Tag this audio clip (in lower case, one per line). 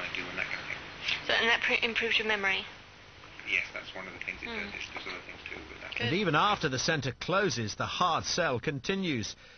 speech
inside a small room